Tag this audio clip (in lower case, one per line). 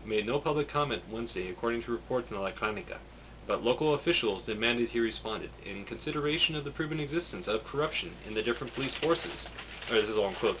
speech
inside a small room